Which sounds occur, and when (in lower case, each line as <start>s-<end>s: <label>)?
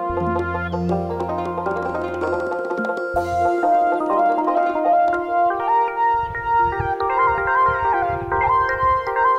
0.0s-9.3s: music
0.0s-9.3s: wind
0.6s-0.8s: bird vocalization
6.1s-6.9s: wind noise (microphone)
7.0s-7.5s: wind noise (microphone)
7.7s-9.3s: wind noise (microphone)